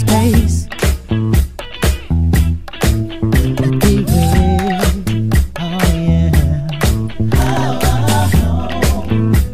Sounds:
Funk, Music

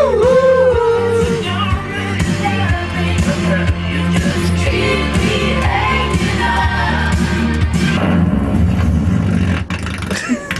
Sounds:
Choir, Music, Male singing

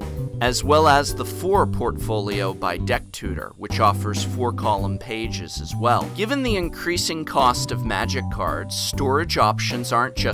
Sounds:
Music, Speech

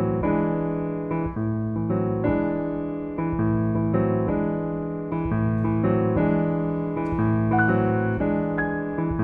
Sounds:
Piano, Keyboard (musical), Classical music, Music, Musical instrument

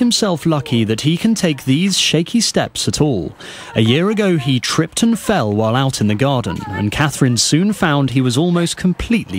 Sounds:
Speech

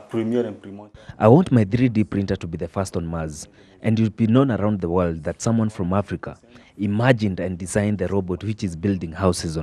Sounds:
Speech

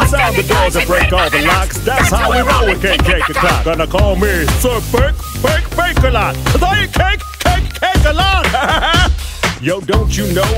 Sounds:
Music

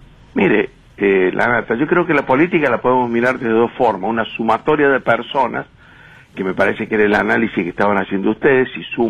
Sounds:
Speech

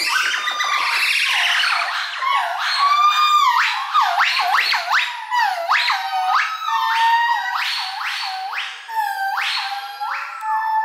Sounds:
gibbon howling

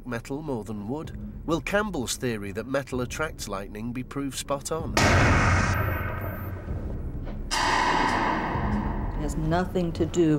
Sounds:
Speech

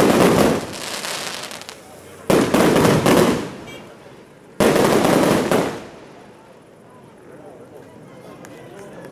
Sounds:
Speech

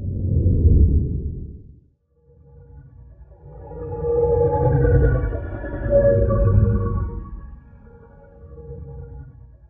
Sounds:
Music

